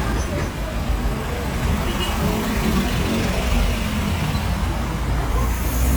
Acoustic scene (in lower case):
street